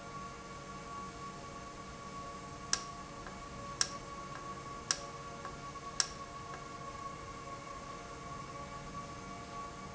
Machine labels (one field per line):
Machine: valve